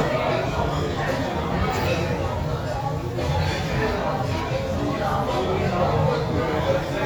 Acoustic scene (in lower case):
restaurant